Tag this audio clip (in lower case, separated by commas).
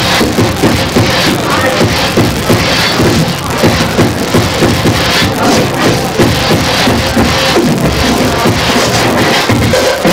house music, musical instrument, scratching (performance technique), music, electronic music